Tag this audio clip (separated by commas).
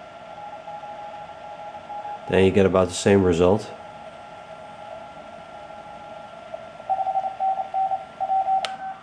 Speech, Radio